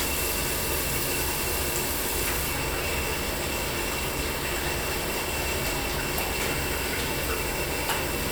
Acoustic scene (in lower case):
restroom